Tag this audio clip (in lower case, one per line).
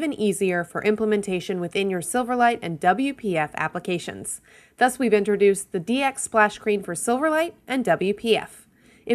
speech